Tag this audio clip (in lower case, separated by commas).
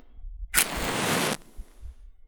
fire